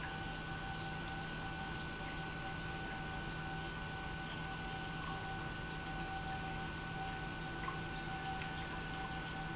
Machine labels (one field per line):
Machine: pump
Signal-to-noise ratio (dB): 0 dB